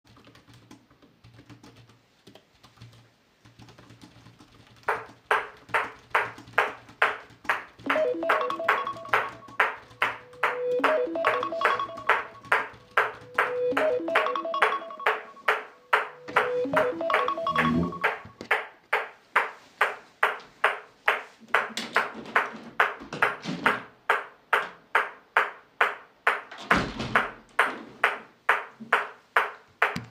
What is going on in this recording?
The person is sitting at a desk and typing on a keyboard. While the person is typing, a phone starts ringing nearby. After the ringing stops, the person walks to the window and opens or closes it. While this happens a person in the back is playing ping pong on his own.